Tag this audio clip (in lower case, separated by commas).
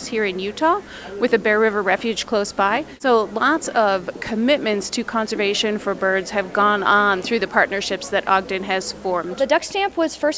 speech